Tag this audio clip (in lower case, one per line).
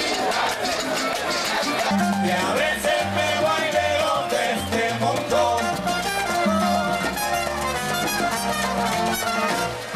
music